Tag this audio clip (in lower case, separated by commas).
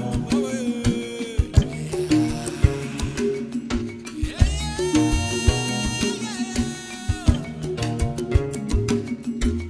music, middle eastern music